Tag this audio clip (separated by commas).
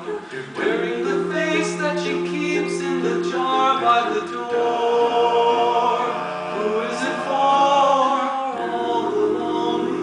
Music, Choir